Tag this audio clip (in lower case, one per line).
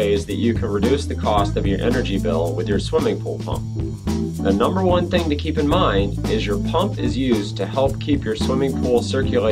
speech
music